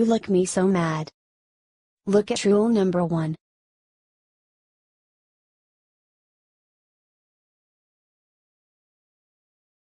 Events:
0.0s-1.1s: woman speaking
2.0s-3.4s: woman speaking

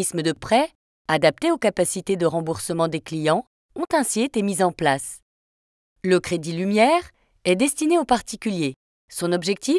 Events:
0.0s-0.7s: woman speaking
1.0s-3.4s: woman speaking
3.7s-5.2s: woman speaking
6.0s-7.1s: woman speaking
7.1s-7.4s: breathing
7.4s-8.8s: woman speaking
9.1s-9.7s: woman speaking

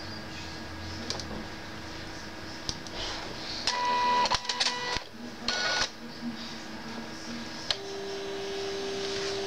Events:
0.0s-9.4s: mechanisms
1.0s-1.2s: clicking
1.2s-1.5s: generic impact sounds
2.6s-2.9s: clicking
3.6s-5.9s: printer
3.7s-5.0s: brief tone
5.1s-5.6s: speech
5.5s-5.8s: brief tone
5.9s-7.5s: speech
7.6s-9.4s: printer
7.7s-7.8s: tick
9.0s-9.1s: tick

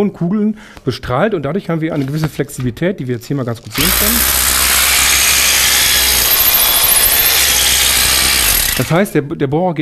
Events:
0.0s-0.5s: male speech
0.5s-0.8s: breathing
0.8s-4.2s: male speech
3.7s-8.9s: drill
8.7s-9.8s: male speech

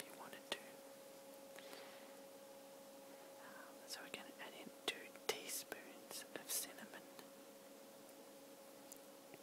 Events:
0.0s-9.4s: mechanisms
0.1s-0.7s: whispering
1.5s-1.7s: human sounds
1.6s-2.1s: breathing
3.3s-3.8s: whispering
3.9s-4.6s: whispering
4.8s-5.1s: whispering
5.3s-5.9s: whispering
6.1s-7.2s: whispering
8.8s-9.0s: human sounds
9.3s-9.4s: human sounds

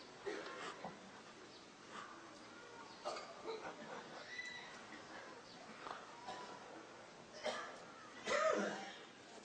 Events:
0.0s-9.4s: background noise
0.2s-0.9s: crying
0.4s-0.5s: tick
1.4s-1.6s: chirp
1.9s-2.2s: crying
2.3s-2.4s: chirp
2.4s-2.9s: human voice
2.8s-3.0s: chirp
3.4s-4.2s: human voice
4.2s-4.7s: screaming
4.4s-4.5s: tick
5.4s-5.5s: chirp
5.8s-6.0s: generic impact sounds
6.2s-6.5s: human voice
6.2s-6.3s: generic impact sounds
7.4s-7.8s: cough
7.8s-8.1s: human voice
8.2s-9.1s: cough
8.5s-9.0s: human voice

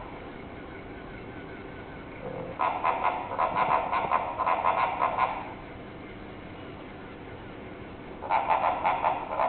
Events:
0.0s-9.4s: mechanisms
2.6s-3.2s: pig
3.3s-5.5s: pig
3.4s-3.7s: generic impact sounds
4.0s-4.2s: generic impact sounds
8.2s-9.2s: pig
9.3s-9.4s: pig

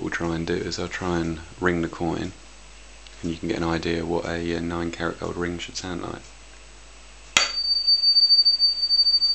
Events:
0.0s-7.3s: tick-tock
0.0s-9.3s: mechanisms
3.0s-3.1s: tick
3.2s-6.2s: male speech
7.3s-9.3s: ping

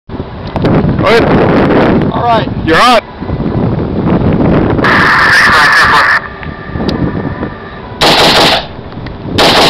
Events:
0.0s-9.6s: wind
0.5s-2.6s: wind noise (microphone)
0.6s-0.8s: gunfire
1.0s-1.2s: gunfire
1.9s-2.5s: man speaking
1.9s-6.0s: conversation
3.1s-5.7s: wind noise (microphone)
4.8s-6.1s: radio
4.9s-5.9s: man speaking
6.3s-7.5s: wind noise (microphone)
8.0s-8.7s: gunfire
9.3s-9.6s: gunfire

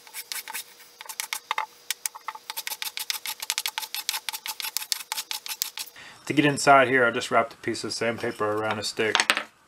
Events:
0.0s-0.8s: filing (rasp)
0.0s-9.6s: mechanisms
1.0s-1.4s: filing (rasp)
1.5s-1.6s: generic impact sounds
1.8s-1.9s: generic impact sounds
2.0s-2.3s: generic impact sounds
2.5s-5.8s: filing (rasp)
5.9s-6.2s: breathing
6.2s-9.4s: man speaking
8.2s-8.4s: generic impact sounds
8.6s-8.7s: generic impact sounds
9.1s-9.4s: generic impact sounds

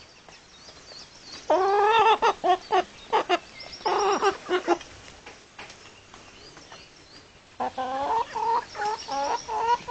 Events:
0.0s-9.9s: background noise
0.0s-0.1s: tweet
0.2s-0.3s: tap
0.3s-0.3s: tweet
0.4s-0.7s: tweet
0.6s-0.7s: tap
0.8s-1.1s: tweet
0.9s-0.9s: tap
1.2s-1.4s: tweet
1.5s-2.6s: rooster
1.5s-1.7s: tweet
1.9s-2.0s: tap
2.6s-2.7s: tweet
2.7s-2.8s: rooster
2.9s-3.0s: tweet
3.1s-3.4s: rooster
3.1s-3.2s: tap
3.4s-4.3s: tweet
3.6s-3.7s: tap
3.8s-4.3s: rooster
4.4s-4.7s: rooster
4.8s-4.8s: tick
5.0s-5.1s: tick
5.2s-5.3s: tap
5.5s-5.6s: tap
5.7s-6.0s: tweet
6.1s-6.2s: tap
6.3s-6.5s: tweet
6.5s-6.6s: tap
6.6s-6.9s: tweet
6.7s-6.8s: tap
7.0s-7.2s: tweet
7.6s-8.6s: rooster
8.6s-9.5s: tweet
8.7s-8.9s: rooster
8.8s-8.9s: tap
9.1s-9.3s: rooster
9.5s-9.7s: rooster
9.6s-9.7s: tweet
9.9s-9.9s: rooster

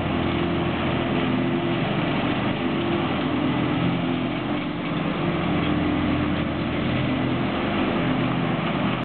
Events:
0.0s-9.0s: engine

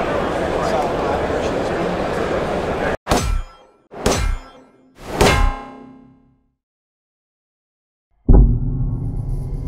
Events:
0.0s-2.9s: mechanisms
0.0s-3.0s: hubbub
3.0s-3.6s: sound effect
3.9s-4.6s: sound effect
4.9s-6.2s: sound effect
8.2s-9.6s: sound effect

